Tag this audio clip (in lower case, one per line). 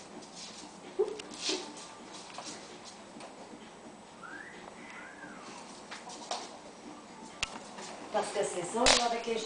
speech